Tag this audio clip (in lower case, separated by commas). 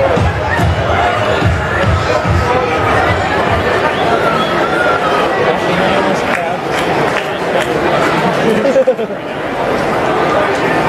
speech, music